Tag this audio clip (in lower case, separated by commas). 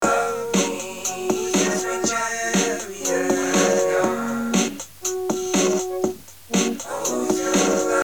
human voice